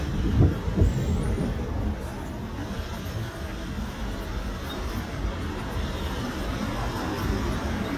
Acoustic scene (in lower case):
residential area